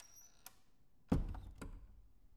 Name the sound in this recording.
door closing